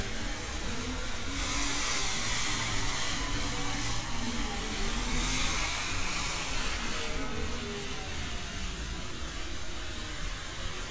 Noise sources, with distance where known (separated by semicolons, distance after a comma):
engine of unclear size, near